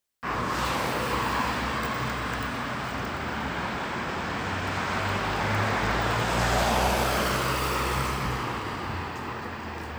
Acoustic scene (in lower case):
street